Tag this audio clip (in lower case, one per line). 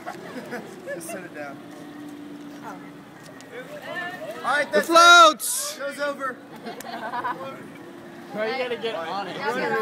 speech